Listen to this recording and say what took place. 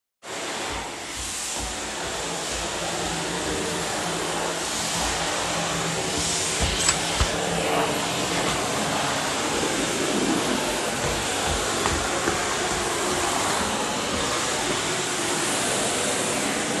I am vaccuming. I finish the first room and go to the next room.